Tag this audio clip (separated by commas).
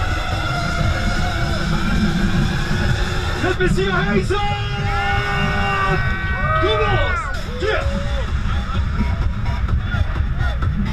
Music, Motorboat, Speech, Vehicle